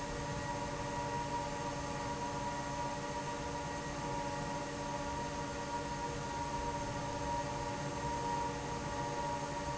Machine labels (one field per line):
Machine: fan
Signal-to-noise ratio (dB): -6 dB